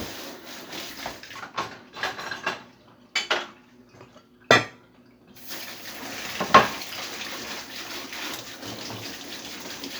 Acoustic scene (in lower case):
kitchen